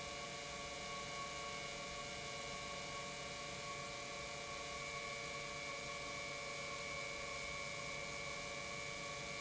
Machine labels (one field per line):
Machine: pump